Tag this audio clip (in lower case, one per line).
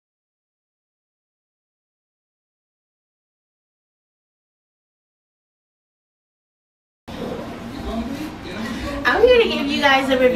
inside a small room
silence
speech